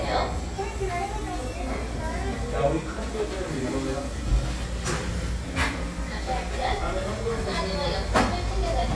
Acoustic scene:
cafe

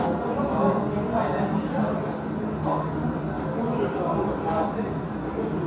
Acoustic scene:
restaurant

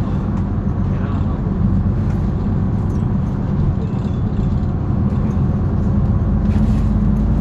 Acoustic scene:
bus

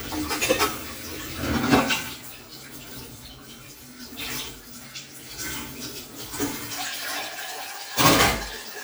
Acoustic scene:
kitchen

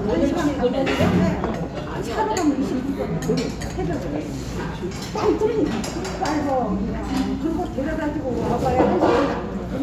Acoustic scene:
restaurant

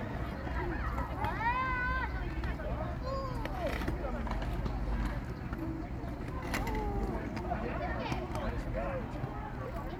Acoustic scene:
park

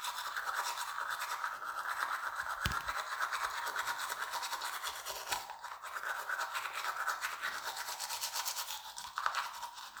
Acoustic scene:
restroom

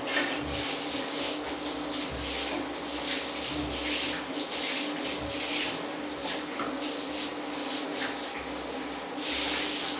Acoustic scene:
restroom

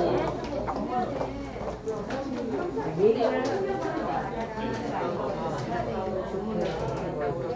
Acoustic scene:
crowded indoor space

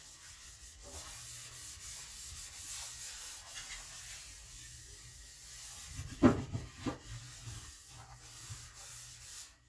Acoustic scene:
kitchen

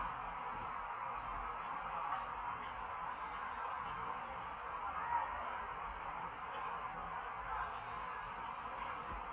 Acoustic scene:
park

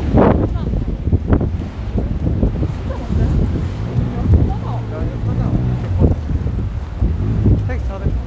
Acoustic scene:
street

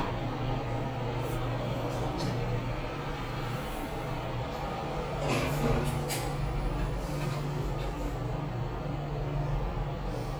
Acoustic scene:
elevator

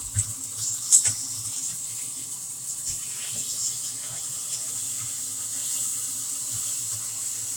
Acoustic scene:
kitchen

